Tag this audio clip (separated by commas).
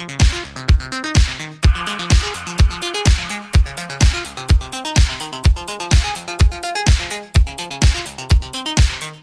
Music, Dubstep